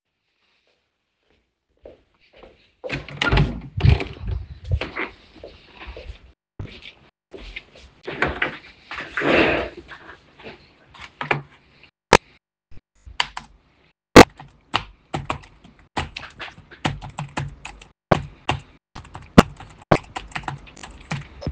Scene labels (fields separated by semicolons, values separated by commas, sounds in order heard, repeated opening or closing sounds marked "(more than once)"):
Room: hallway, bedroom; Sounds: footsteps, door (more than once), keyboard typing